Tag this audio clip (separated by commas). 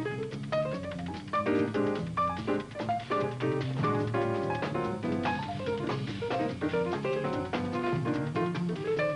Music